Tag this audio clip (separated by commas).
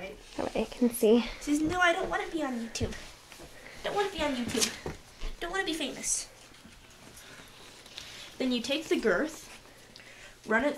Speech